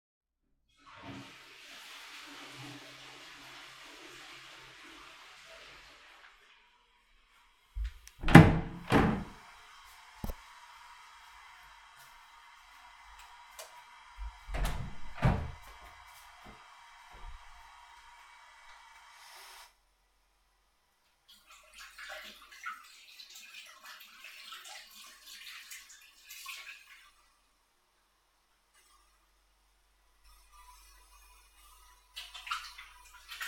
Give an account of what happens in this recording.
Flushing the toilet. Opened the toilet door. Turn on the light to the bathroom. Open the door to the bathromm. Went to the sink. Turn of the water and washing the hands with soap.